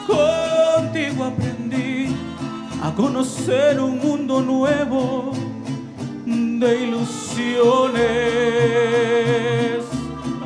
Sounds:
music
musical instrument
violin

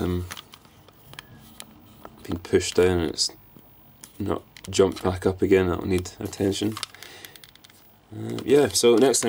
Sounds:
inside a small room
speech

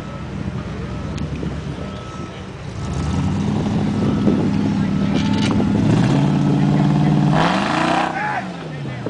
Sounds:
truck
vehicle
reversing beeps
speech

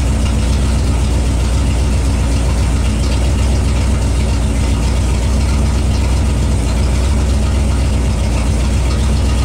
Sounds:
vehicle

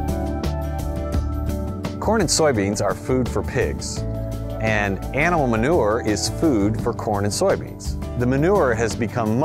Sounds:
music
speech

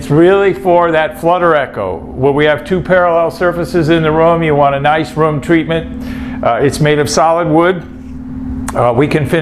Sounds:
speech

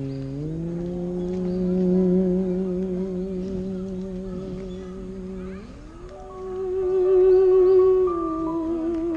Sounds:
playing theremin

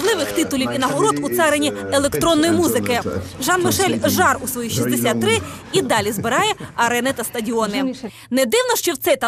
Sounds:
speech

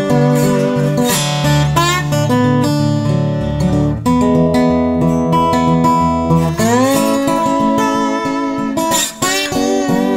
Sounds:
strum
guitar
acoustic guitar
playing acoustic guitar
music
plucked string instrument
musical instrument

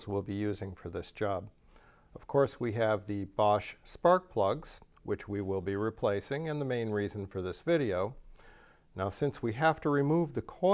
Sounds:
speech

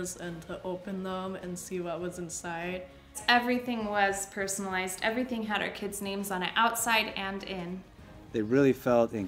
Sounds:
music
speech

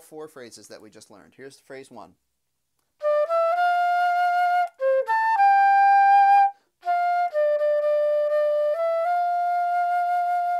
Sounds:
playing flute

